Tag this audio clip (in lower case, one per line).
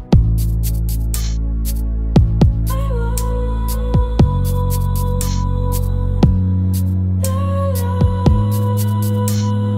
music